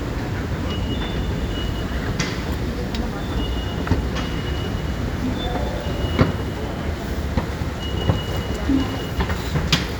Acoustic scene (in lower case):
subway station